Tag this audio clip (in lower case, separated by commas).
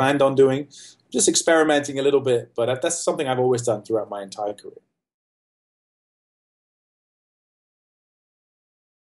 speech